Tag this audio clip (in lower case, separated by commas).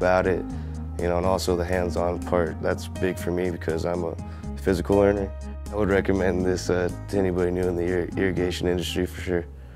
music, speech